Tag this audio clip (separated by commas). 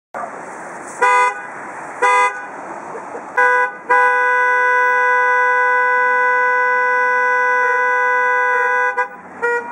honking